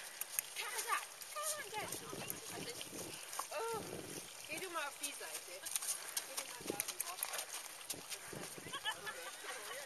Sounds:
outside, rural or natural, horse, speech, animal

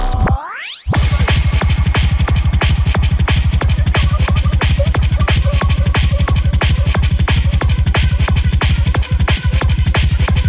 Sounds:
music

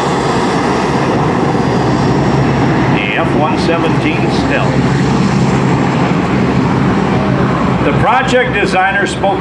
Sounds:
aircraft, aircraft engine, speech, vehicle, airplane

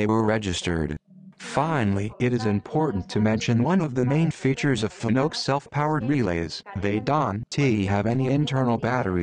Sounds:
sidetone, speech

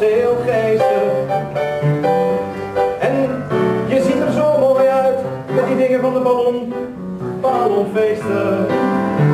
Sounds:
music

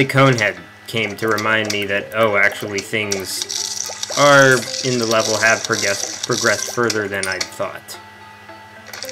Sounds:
speech, music

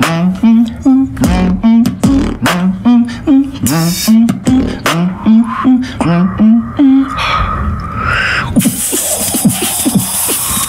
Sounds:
music, scratching (performance technique)

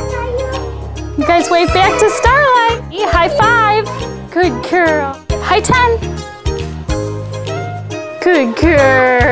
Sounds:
music, speech

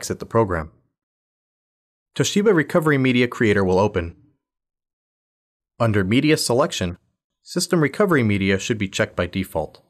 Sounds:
speech

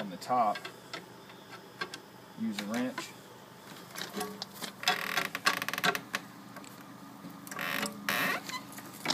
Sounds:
speech, door

